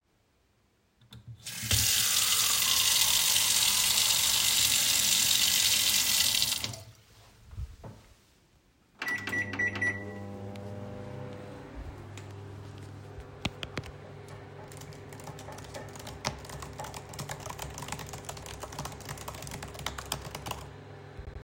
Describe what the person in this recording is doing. I turned on the tap to get me a class of water, then I started the microwave to get my food warm, while waiting I started typing on the keyboard.